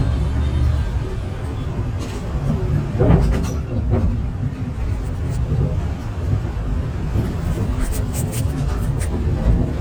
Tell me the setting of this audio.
bus